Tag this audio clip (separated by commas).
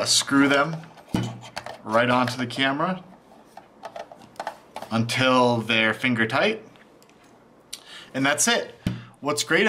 Speech